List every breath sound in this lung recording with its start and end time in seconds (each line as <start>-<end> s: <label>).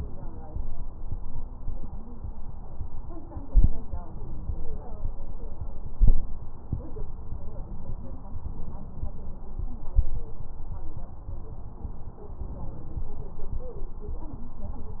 3.35-3.92 s: inhalation
5.89-6.46 s: inhalation
12.51-13.08 s: inhalation